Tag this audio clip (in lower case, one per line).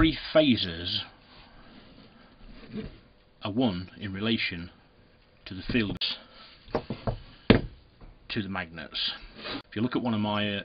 speech